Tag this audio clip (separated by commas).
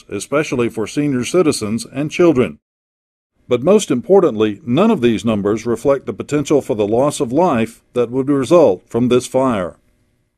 Speech